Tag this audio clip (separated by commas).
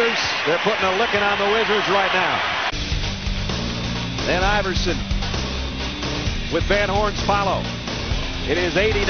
Music, Speech